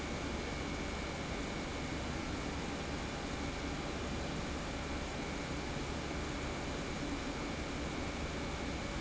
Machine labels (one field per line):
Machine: pump